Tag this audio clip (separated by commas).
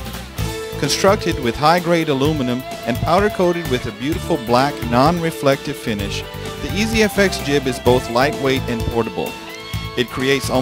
Speech, Music